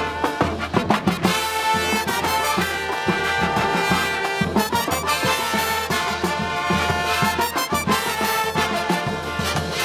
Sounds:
Music, Trombone

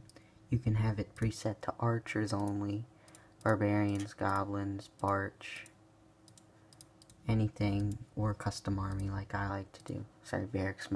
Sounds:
Speech

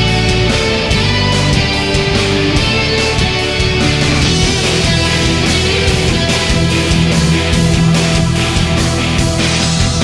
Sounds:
Blues, Music, Theme music

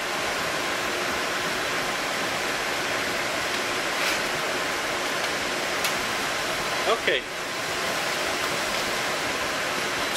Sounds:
Speech

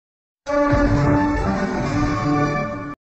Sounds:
Television, Music

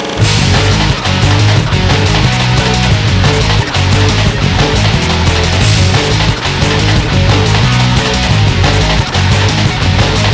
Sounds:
Music

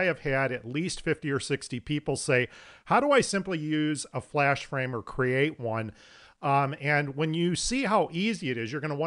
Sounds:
Speech

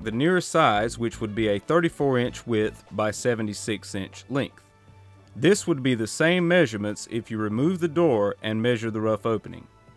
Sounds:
Music, Speech

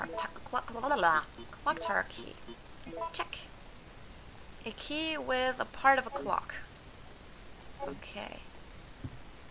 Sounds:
Speech

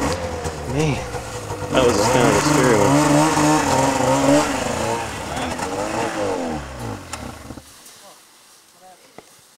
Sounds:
Speech

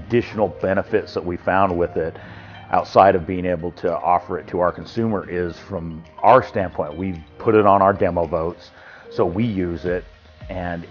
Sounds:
Music, Speech

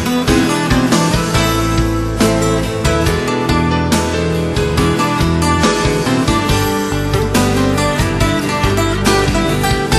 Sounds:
Background music, Music

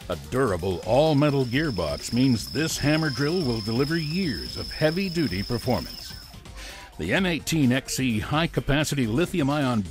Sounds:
Music, Speech

